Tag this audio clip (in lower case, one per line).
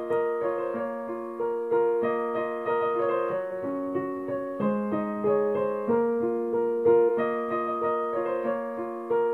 music